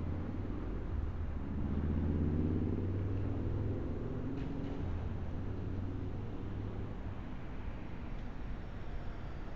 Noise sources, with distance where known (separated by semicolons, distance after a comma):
medium-sounding engine